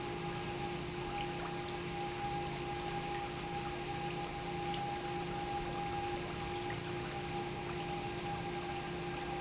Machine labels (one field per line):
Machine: pump